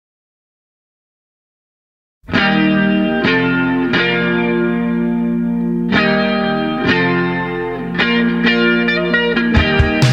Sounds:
Music, Effects unit

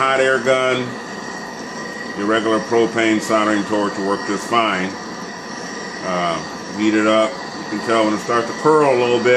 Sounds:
Speech

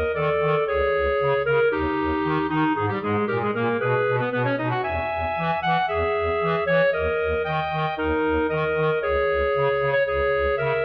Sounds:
Clarinet, Brass instrument

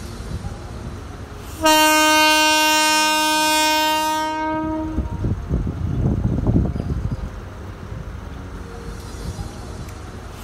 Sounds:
train horning

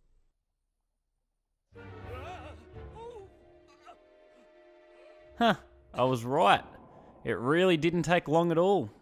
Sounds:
Silence, Music, Speech

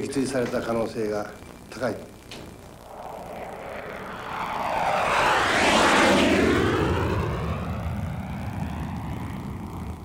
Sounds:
airplane flyby

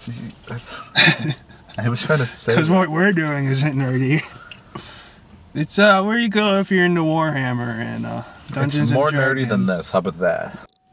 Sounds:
Speech

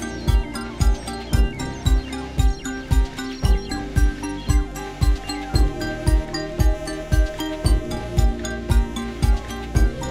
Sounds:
Music

